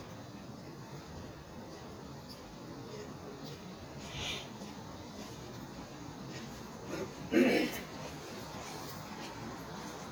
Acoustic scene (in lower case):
park